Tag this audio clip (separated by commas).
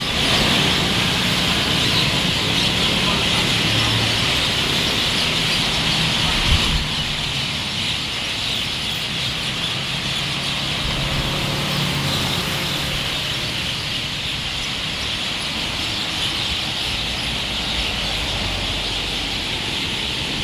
roadway noise, Vehicle, Motor vehicle (road)